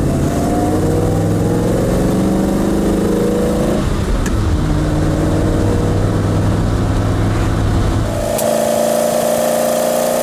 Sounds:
car, vehicle, motor vehicle (road)

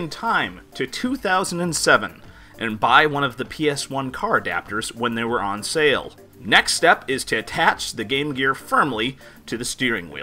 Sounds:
music, speech

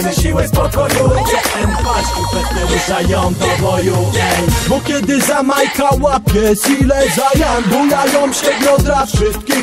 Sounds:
music

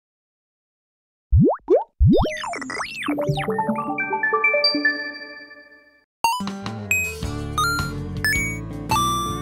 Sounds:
sound effect, plop, music

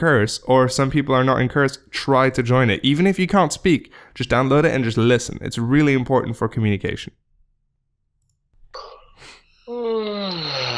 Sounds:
speech

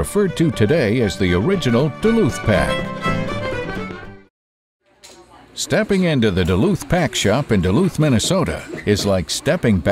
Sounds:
speech, music

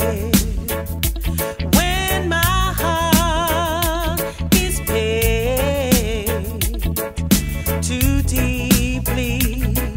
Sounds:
yodeling, music

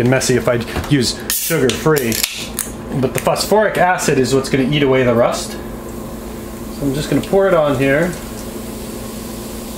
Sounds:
speech, outside, urban or man-made

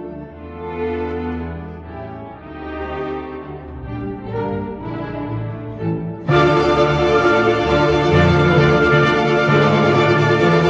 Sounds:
music, fiddle, musical instrument

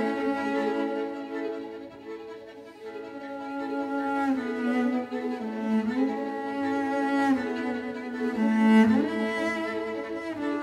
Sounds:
cello, music

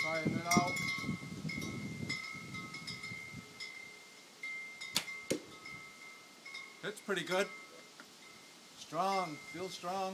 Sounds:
man speaking, speech

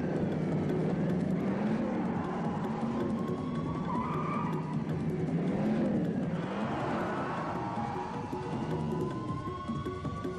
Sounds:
vehicle, motor vehicle (road), car passing by, music, car

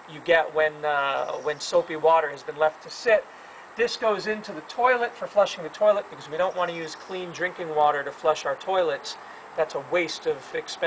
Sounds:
speech

